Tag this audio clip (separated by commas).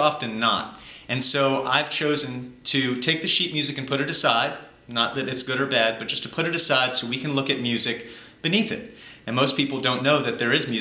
Speech